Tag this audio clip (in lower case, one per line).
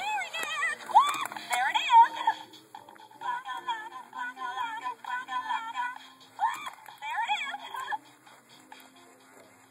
speech
music